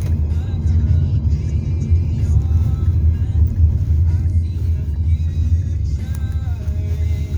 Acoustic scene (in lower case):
car